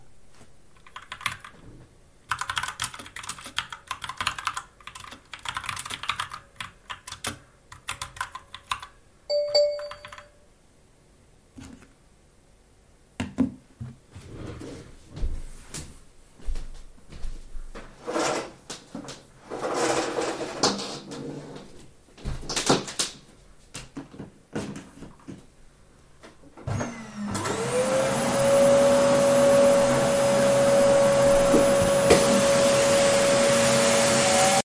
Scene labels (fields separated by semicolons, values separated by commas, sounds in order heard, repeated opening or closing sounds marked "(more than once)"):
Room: office; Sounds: keyboard typing, phone ringing, footsteps, vacuum cleaner